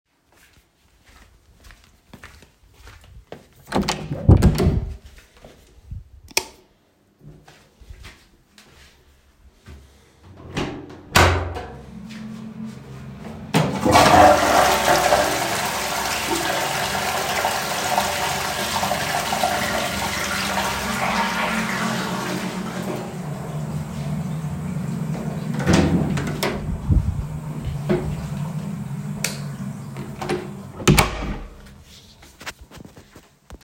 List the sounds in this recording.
footsteps, door, light switch, toilet flushing, running water